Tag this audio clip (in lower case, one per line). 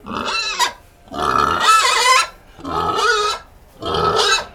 livestock
animal